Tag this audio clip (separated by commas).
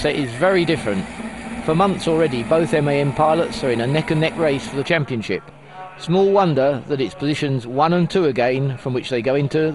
Speech, Truck